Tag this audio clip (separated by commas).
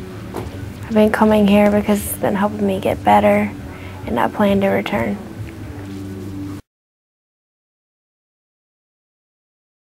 Speech